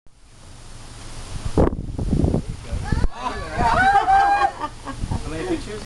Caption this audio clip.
Wind sound against a microphone followed by a group of people sounding surprised